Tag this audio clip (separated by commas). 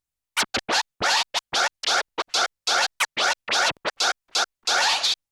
Music, Musical instrument, Scratching (performance technique)